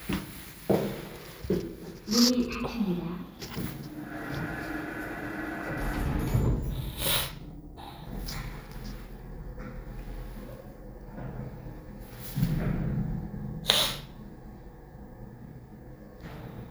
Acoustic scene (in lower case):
elevator